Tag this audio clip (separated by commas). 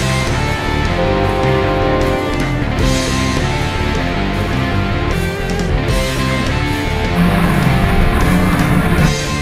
Speech, Music, Truck, Vehicle